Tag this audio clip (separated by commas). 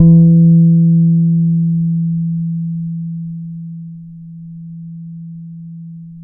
Guitar, Bass guitar, Musical instrument, Music, Plucked string instrument